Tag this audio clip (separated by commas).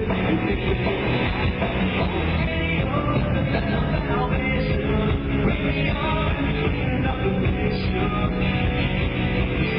Music